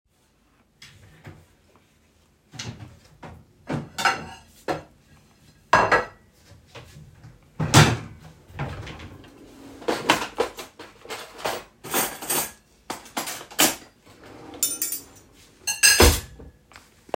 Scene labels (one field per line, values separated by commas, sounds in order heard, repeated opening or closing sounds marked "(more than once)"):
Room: kitchen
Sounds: wardrobe or drawer (more than once), cutlery and dishes